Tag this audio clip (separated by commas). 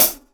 Percussion, Hi-hat, Cymbal, Music, Musical instrument